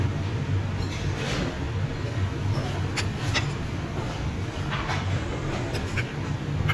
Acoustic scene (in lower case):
restaurant